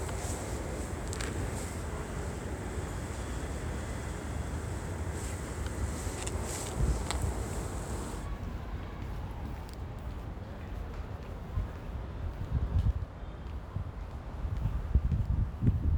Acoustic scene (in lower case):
residential area